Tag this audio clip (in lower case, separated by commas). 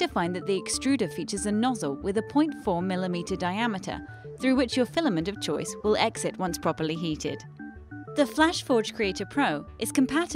music, speech